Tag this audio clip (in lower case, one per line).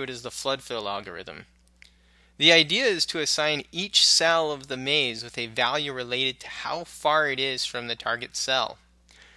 speech